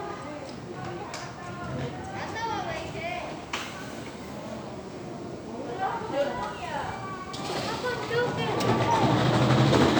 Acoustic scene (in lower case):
park